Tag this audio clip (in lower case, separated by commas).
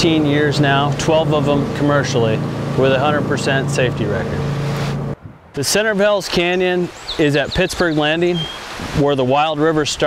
motorboat, speech, vehicle, water vehicle